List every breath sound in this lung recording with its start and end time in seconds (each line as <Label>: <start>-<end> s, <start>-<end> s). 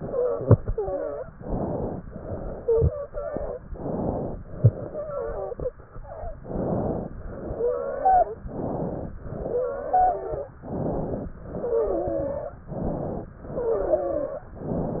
Inhalation: 1.33-2.03 s, 3.68-4.38 s, 6.45-7.16 s, 8.50-9.20 s, 10.62-11.33 s, 12.73-13.36 s
Exhalation: 0.00-1.31 s, 2.11-2.92 s, 4.48-5.75 s, 7.25-8.43 s, 9.22-10.53 s, 11.42-12.62 s, 13.41-14.52 s
Wheeze: 2.56-3.63 s, 4.80-5.75 s, 7.44-8.43 s, 9.35-10.53 s, 11.42-12.62 s, 13.41-14.52 s, 13.41-14.52 s